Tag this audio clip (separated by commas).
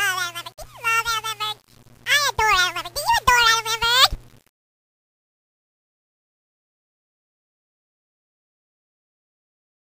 Speech